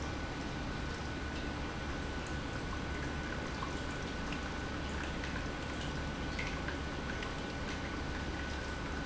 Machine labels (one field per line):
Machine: pump